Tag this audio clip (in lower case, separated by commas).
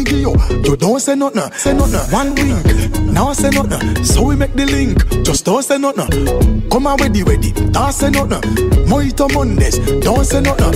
music